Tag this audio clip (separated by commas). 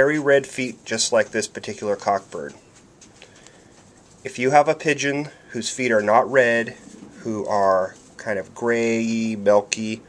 Speech